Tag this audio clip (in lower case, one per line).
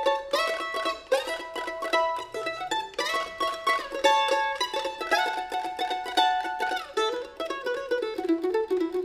playing mandolin